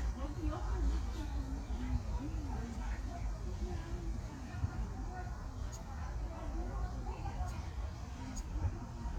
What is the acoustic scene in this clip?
park